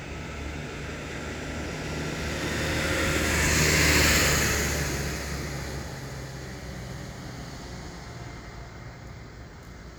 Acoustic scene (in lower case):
residential area